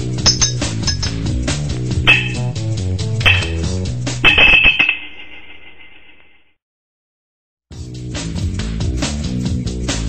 Dishes are clanging as jazzy music plays in the background